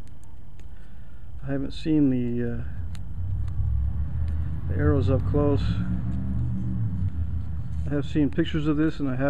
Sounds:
Speech

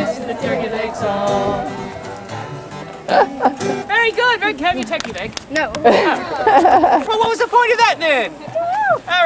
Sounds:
Speech, Music

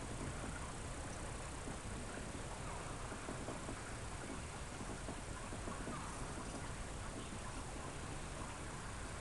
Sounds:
bee or wasp, Insect

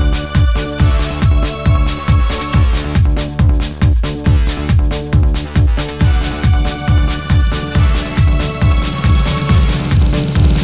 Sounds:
Music, Techno

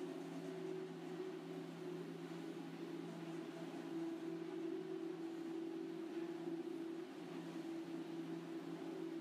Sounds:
Printer

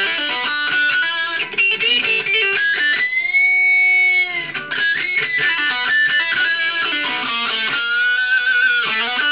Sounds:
Guitar, Music, Plucked string instrument, Musical instrument, inside a small room

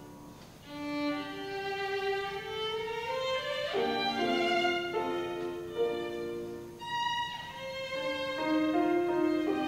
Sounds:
Music, fiddle, Musical instrument

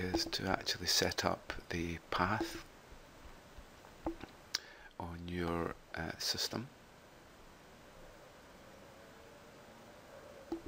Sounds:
Speech

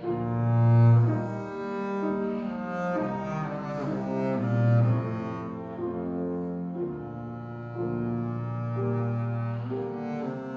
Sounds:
Music, Double bass

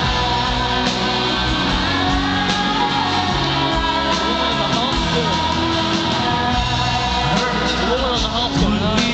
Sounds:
Male singing, Speech, Music

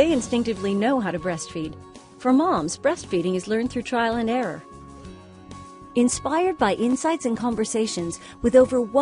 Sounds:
Speech, Music

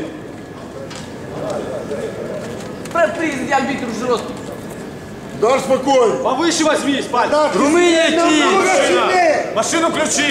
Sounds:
Speech

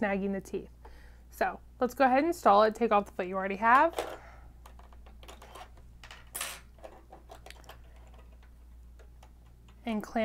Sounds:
Speech

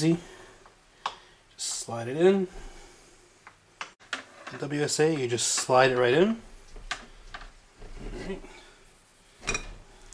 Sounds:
Speech, Tools, inside a small room

